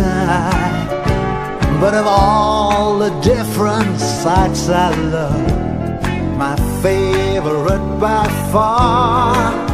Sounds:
music

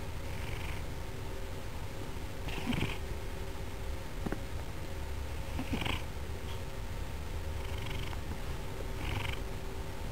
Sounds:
domestic animals
cat
animal

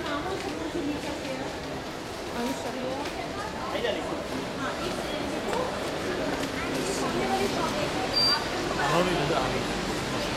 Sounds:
speech

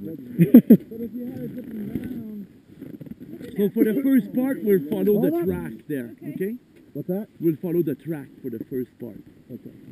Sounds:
speech

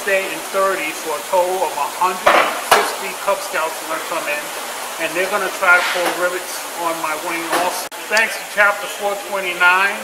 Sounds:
speech

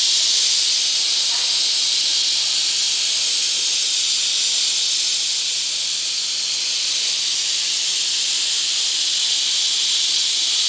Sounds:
spray

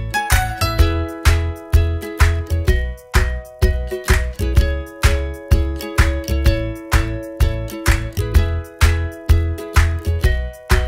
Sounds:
music
background music
happy music

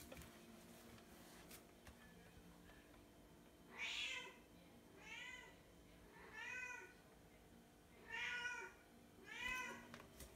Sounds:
cat hissing

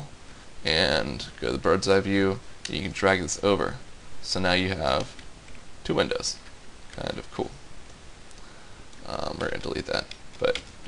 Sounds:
speech

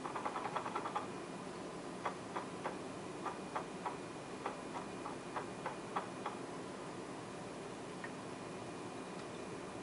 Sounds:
tick-tock
tick

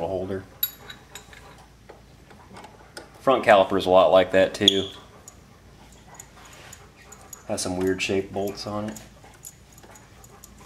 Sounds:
speech

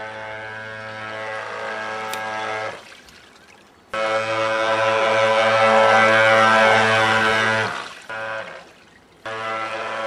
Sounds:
speedboat

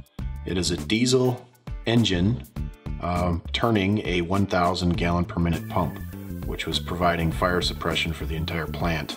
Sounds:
speech
music

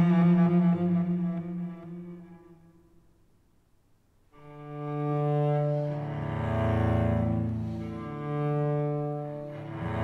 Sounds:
cello
bowed string instrument

